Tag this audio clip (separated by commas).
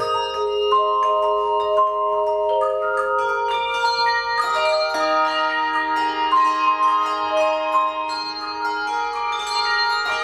Music